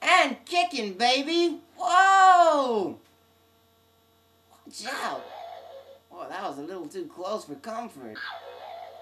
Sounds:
Speech

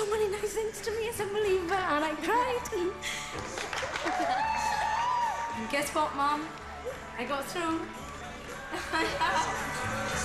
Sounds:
Speech, Music

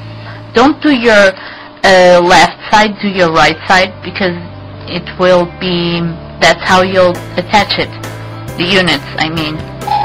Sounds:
Speech, Music

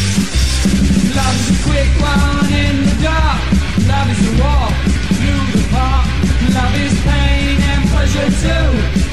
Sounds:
Punk rock, Music

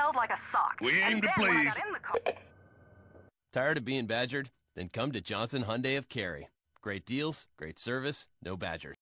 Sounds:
Speech

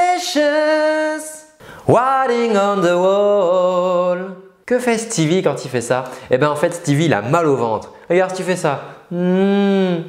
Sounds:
people humming

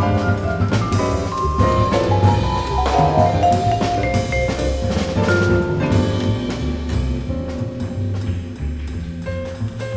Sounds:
playing vibraphone

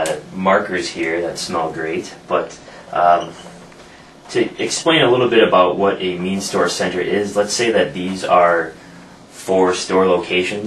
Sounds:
Speech

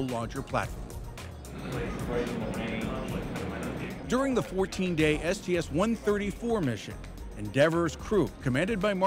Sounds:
Speech, Music

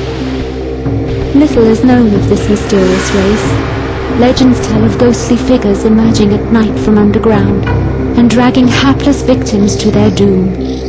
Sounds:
Speech

